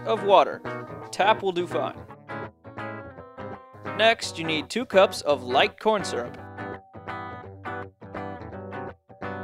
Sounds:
Music, Speech

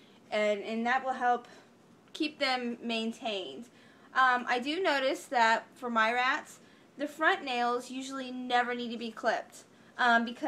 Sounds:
Speech

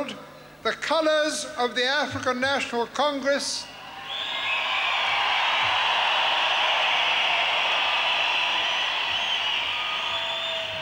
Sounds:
Speech, Narration, man speaking

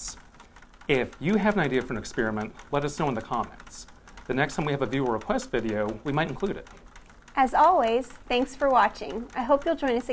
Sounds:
Liquid, Speech

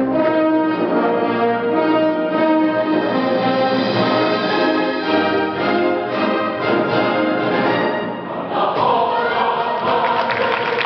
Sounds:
Orchestra, Music, Choir, Classical music

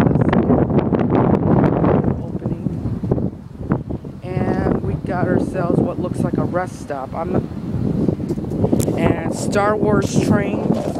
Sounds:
Speech, Wind

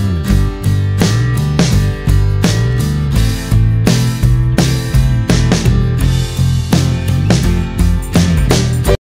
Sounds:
Music

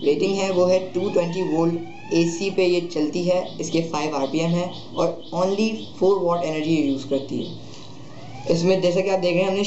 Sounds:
Speech

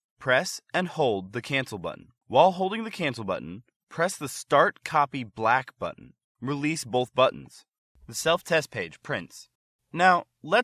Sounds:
Speech

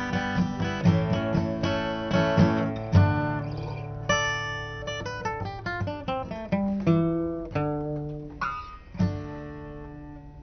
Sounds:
Acoustic guitar, Bowed string instrument, Music, Guitar, Musical instrument, Plucked string instrument

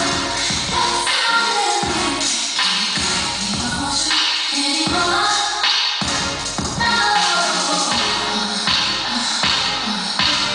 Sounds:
Music

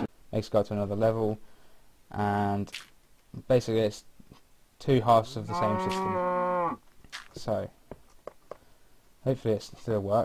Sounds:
Speech

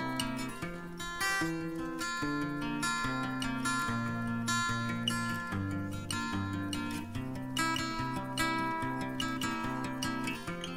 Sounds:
Music

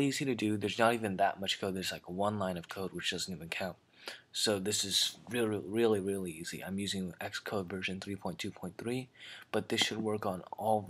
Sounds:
Speech

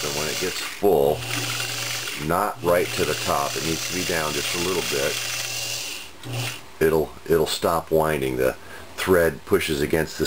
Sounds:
Sewing machine, Speech

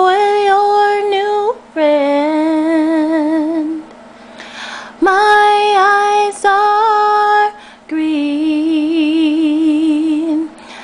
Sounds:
Female singing

